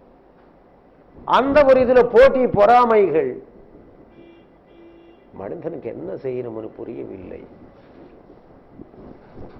A man speaks, a horn blows twice, the man speaks again